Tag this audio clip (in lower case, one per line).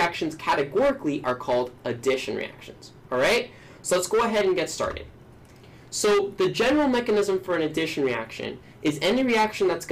speech